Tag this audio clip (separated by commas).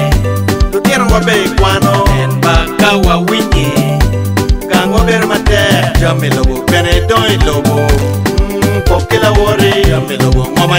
Dance music, Music